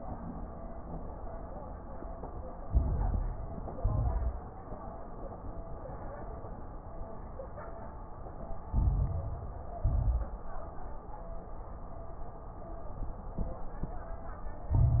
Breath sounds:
Inhalation: 2.66-3.74 s, 8.70-9.78 s, 14.73-15.00 s
Exhalation: 3.78-4.38 s, 9.80-10.40 s
Crackles: 2.66-3.74 s, 3.78-4.38 s, 8.70-9.78 s, 9.80-10.40 s, 14.73-15.00 s

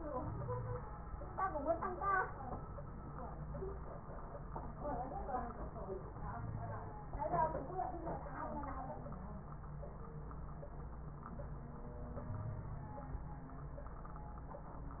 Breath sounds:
Wheeze: 0.18-0.86 s, 6.24-6.92 s, 12.30-13.04 s

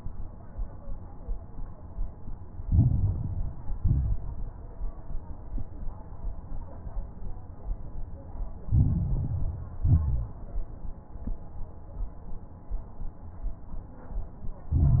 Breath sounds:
Inhalation: 2.64-3.74 s, 8.68-9.78 s, 14.73-15.00 s
Exhalation: 3.78-4.32 s, 9.82-10.36 s
Crackles: 2.64-3.74 s, 3.78-4.32 s, 8.68-9.78 s, 9.82-10.36 s, 14.73-15.00 s

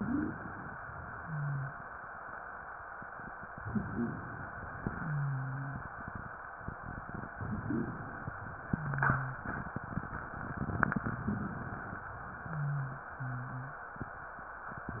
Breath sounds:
Inhalation: 0.00-0.71 s, 3.39-4.46 s, 7.32-8.39 s
Exhalation: 0.79-1.86 s, 4.49-5.85 s, 8.40-9.50 s
Wheeze: 0.00-0.36 s, 1.19-1.70 s, 3.63-4.13 s, 4.96-5.81 s, 7.42-8.06 s, 8.71-9.50 s, 12.44-13.79 s

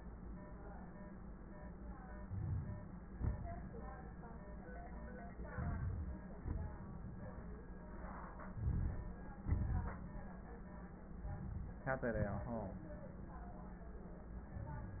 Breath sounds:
Inhalation: 2.18-3.06 s, 5.50-6.25 s, 8.54-9.37 s, 11.07-11.83 s
Exhalation: 3.06-3.74 s, 6.24-6.90 s, 9.35-10.36 s, 12.11-13.08 s
Crackles: 2.18-3.06 s, 5.50-6.25 s, 8.53-9.33 s, 9.35-10.36 s

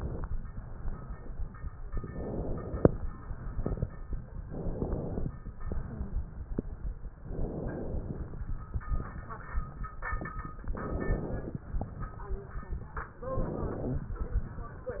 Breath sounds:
Inhalation: 0.00-0.26 s, 1.87-2.97 s, 4.46-5.25 s, 7.18-8.38 s, 10.74-11.64 s, 13.21-14.11 s
Exhalation: 0.48-1.69 s, 3.03-4.34 s, 5.61-6.92 s, 8.76-9.91 s, 11.72-13.13 s, 14.13-15.00 s

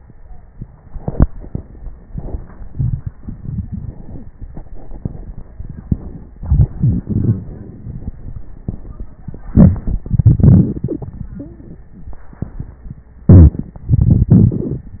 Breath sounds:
Inhalation: 9.40-10.04 s, 13.25-13.79 s
Exhalation: 10.05-12.22 s, 13.78-14.98 s
Wheeze: 3.74-4.38 s
Stridor: 11.36-11.87 s

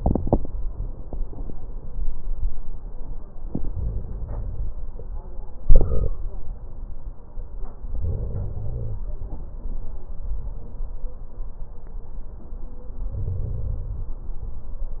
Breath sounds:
Inhalation: 3.74-4.70 s, 7.96-9.02 s, 13.11-14.17 s

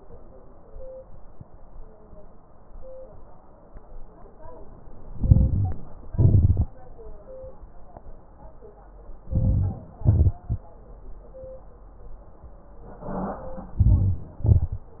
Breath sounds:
Inhalation: 5.09-5.95 s, 9.23-9.98 s, 13.80-14.41 s
Exhalation: 6.02-6.77 s, 9.97-10.73 s, 14.40-15.00 s
Crackles: 5.09-5.95 s, 6.02-6.77 s, 9.21-9.96 s, 9.97-10.73 s, 13.78-14.38 s, 14.40-15.00 s

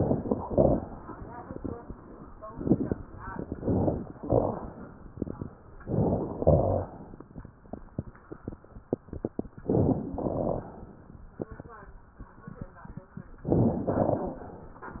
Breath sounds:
Inhalation: 0.00-0.44 s, 3.38-4.10 s, 4.27-4.99 s, 5.79-6.38 s, 9.56-10.15 s
Exhalation: 0.42-0.86 s, 6.39-6.98 s, 10.17-10.76 s, 13.98-14.54 s
Crackles: 0.00-0.36 s, 0.42-0.86 s, 3.38-4.10 s, 4.27-4.99 s, 5.79-6.38 s, 6.39-6.98 s, 9.56-10.15 s, 10.17-10.76 s, 13.41-13.89 s, 13.98-14.54 s

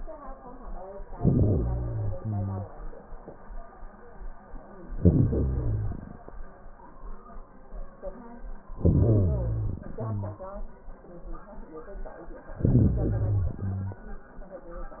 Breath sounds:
Inhalation: 1.03-2.78 s, 4.88-6.32 s, 8.73-9.84 s, 12.53-13.98 s
Exhalation: 9.83-10.94 s

